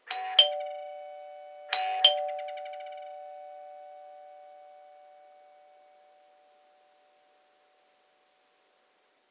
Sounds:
home sounds, Alarm, Doorbell, Door

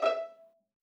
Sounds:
Bowed string instrument, Musical instrument, Music

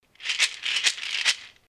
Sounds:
Rattle

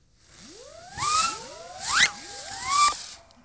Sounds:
Explosion, Fireworks

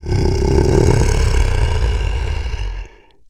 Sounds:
Animal, Growling

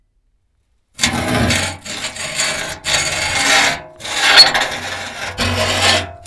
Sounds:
Screech

